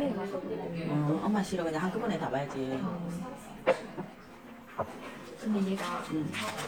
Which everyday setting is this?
crowded indoor space